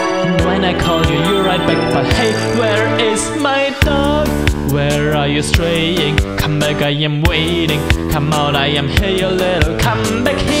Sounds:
music

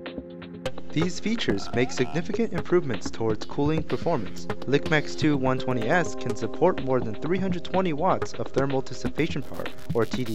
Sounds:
speech, music

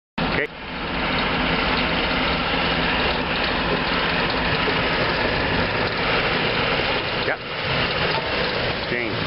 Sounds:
speech, outside, urban or man-made, truck, vehicle

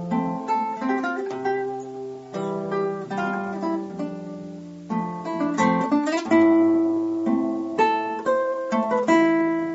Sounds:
plucked string instrument, music, strum, guitar, acoustic guitar, playing acoustic guitar, musical instrument

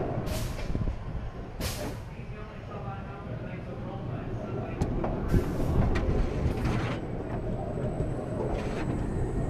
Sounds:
roller coaster running

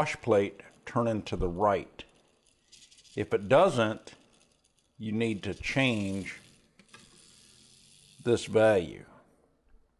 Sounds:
inside a small room, speech

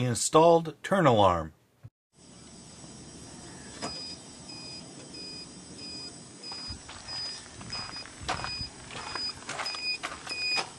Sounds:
vehicle, speech

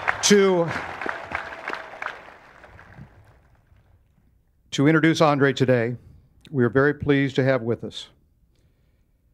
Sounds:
speech, monologue, male speech

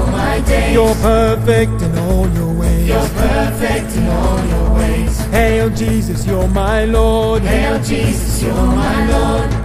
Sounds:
music

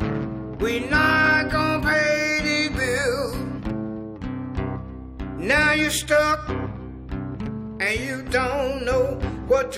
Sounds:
blues, music

